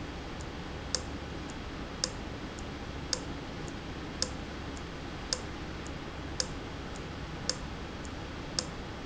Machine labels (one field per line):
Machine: valve